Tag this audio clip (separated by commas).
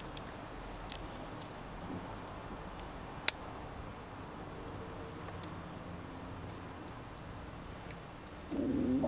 Caterwaul, pets, Animal, Cat